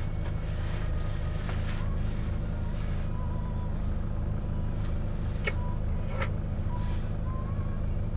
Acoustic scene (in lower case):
car